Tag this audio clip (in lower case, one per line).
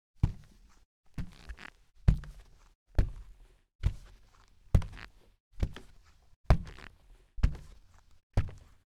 walk